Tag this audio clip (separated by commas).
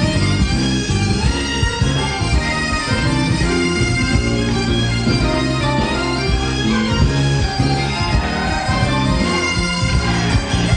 Music, Bagpipes